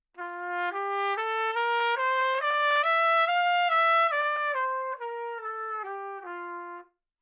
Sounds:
trumpet, brass instrument, musical instrument, music

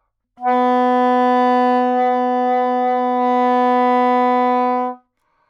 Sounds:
music, wind instrument, musical instrument

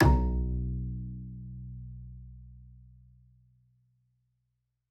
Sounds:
music, bowed string instrument, musical instrument

